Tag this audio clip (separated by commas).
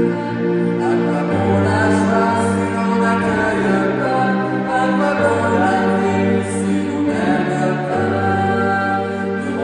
Music